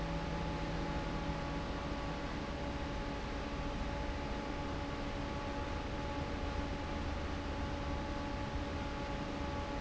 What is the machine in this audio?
fan